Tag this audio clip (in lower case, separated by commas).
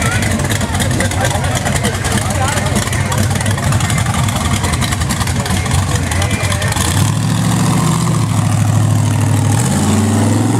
vehicle, speech